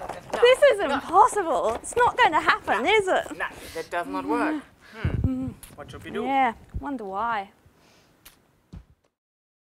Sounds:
Speech

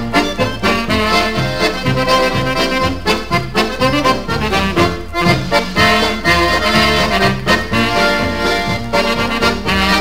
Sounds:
Music

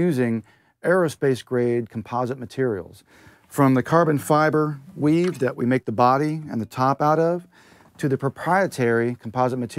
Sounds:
Speech

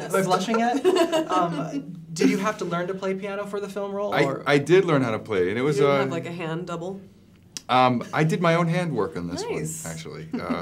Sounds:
Speech

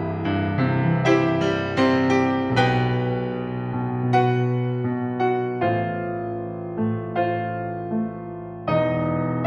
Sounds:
Music

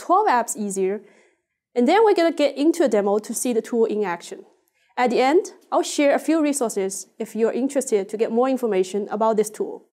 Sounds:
Speech

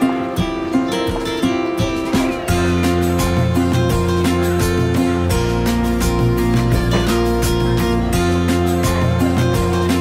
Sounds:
Music

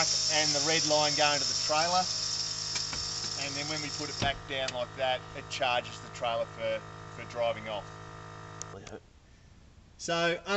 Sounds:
Speech

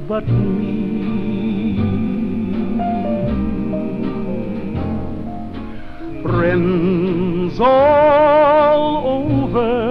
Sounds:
Music

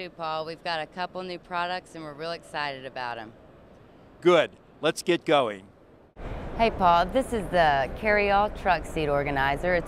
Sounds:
Speech

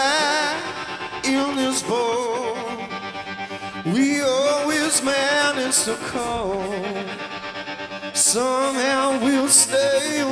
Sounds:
Music

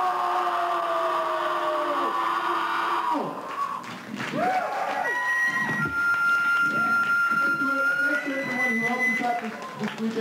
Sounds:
Male speech

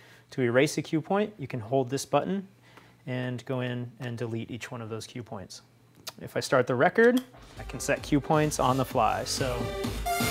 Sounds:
Speech, Music

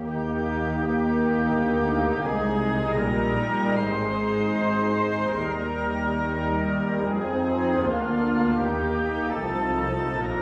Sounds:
Music

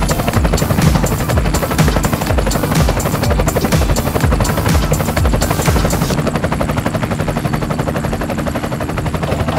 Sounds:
Music, Helicopter

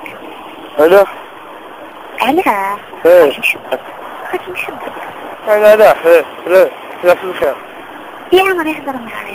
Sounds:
Speech

